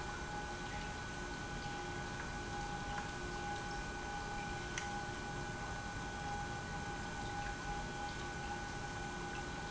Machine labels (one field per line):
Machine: pump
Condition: normal